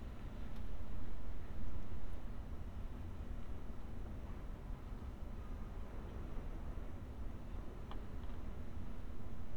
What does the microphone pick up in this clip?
background noise